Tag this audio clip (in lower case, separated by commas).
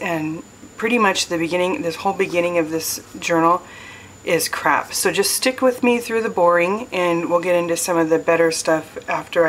speech